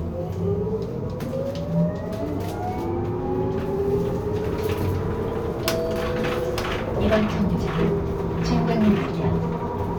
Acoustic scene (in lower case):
bus